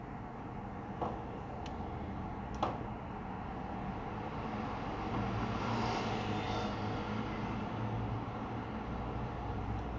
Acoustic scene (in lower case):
residential area